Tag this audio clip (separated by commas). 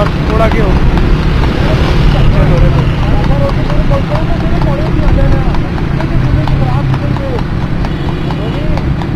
Clip-clop, Animal, Speech